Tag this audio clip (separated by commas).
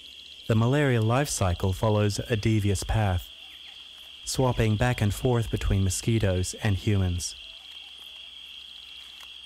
Speech, Environmental noise